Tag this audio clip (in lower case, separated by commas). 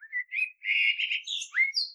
animal, wild animals, bird